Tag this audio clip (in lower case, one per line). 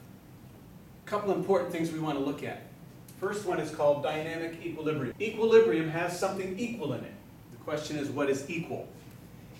speech